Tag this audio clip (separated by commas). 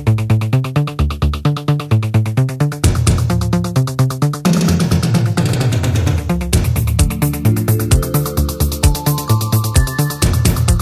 Music, Sampler